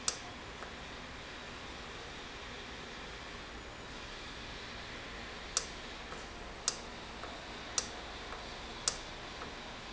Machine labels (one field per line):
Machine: valve